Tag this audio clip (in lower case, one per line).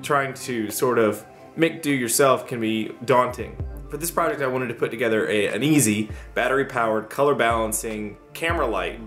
speech
music